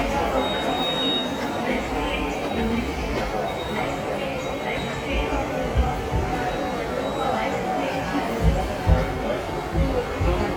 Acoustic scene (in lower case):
subway station